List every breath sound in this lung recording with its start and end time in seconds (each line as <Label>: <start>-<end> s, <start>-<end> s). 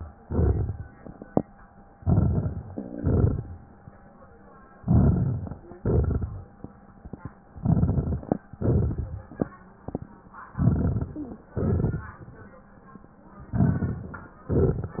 Inhalation: 2.01-2.70 s, 4.78-5.70 s, 7.53-8.45 s, 10.45-11.49 s, 13.47-14.42 s
Exhalation: 0.19-0.88 s, 2.75-3.67 s, 5.77-6.69 s, 8.48-9.52 s, 11.52-12.56 s, 14.46-15.00 s
Crackles: 0.19-0.88 s, 2.01-2.70 s, 2.75-3.67 s, 4.78-5.70 s, 5.77-6.69 s, 7.53-8.45 s, 8.48-9.52 s, 10.45-11.49 s, 11.52-12.56 s, 13.47-14.42 s, 14.46-15.00 s